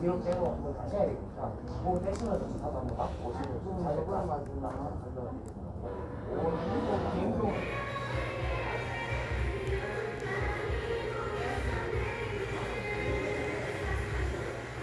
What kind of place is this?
crowded indoor space